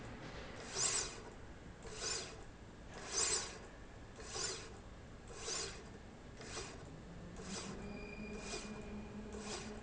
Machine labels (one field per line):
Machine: slide rail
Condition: normal